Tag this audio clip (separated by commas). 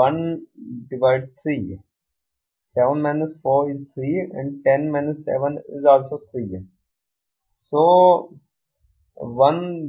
Speech